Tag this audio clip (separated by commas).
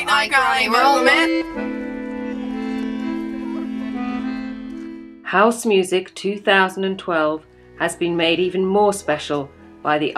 Speech, Music